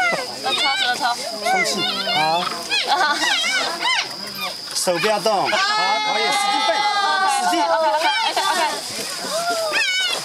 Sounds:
animal
speech
outside, rural or natural

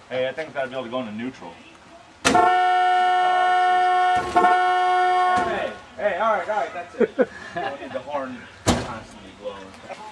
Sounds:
toot
speech

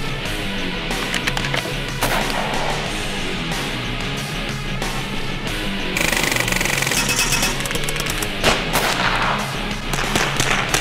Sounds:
machine gun

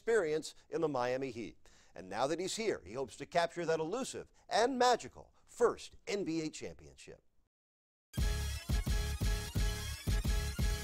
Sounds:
speech

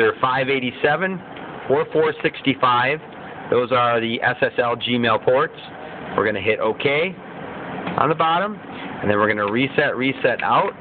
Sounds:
speech

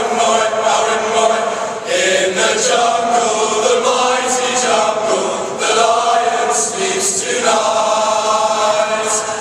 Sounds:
singing choir
music
male singing
choir

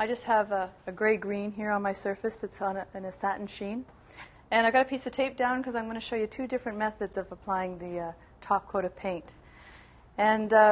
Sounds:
speech

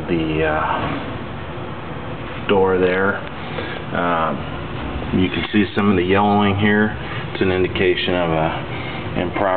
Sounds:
speech

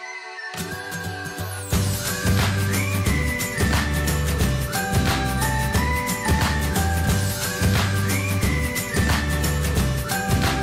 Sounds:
music

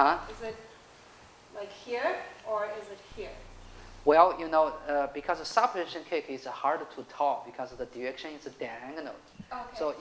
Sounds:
speech

